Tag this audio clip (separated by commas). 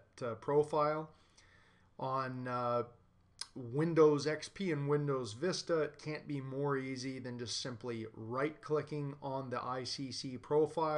Speech